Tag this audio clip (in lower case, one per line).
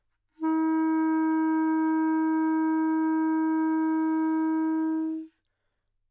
wind instrument
musical instrument
music